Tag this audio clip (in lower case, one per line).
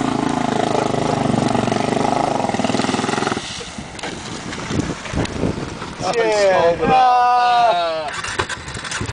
speech